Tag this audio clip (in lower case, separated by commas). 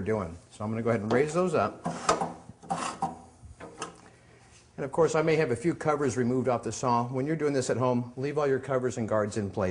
speech, tools